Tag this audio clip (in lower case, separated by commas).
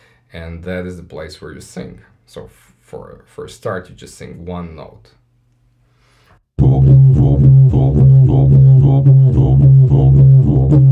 playing didgeridoo